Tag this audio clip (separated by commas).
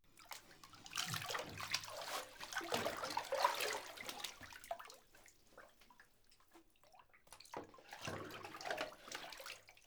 home sounds, Bathtub (filling or washing)